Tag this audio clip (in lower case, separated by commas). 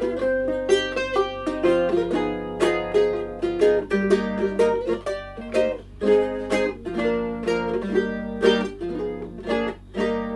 ukulele, plucked string instrument, music, musical instrument